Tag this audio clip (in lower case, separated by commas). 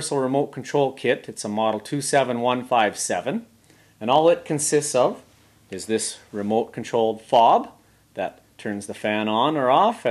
speech